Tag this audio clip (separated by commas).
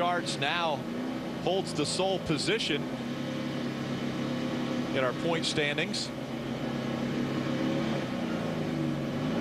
Speech, Car, auto racing, Vehicle